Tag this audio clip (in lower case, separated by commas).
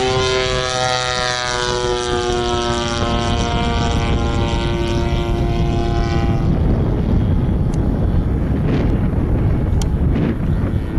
aircraft, vehicle